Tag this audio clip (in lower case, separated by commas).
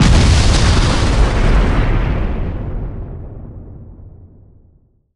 explosion